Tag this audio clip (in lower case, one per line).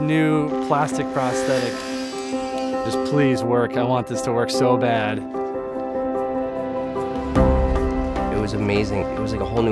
music
speech